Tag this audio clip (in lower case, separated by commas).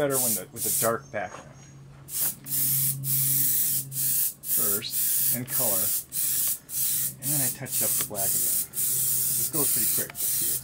speech